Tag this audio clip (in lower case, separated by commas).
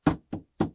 tap